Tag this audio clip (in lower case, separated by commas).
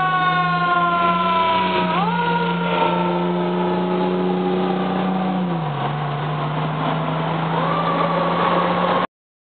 medium engine (mid frequency), vehicle, engine